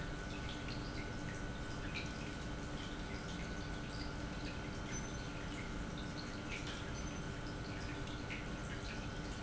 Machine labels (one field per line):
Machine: pump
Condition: normal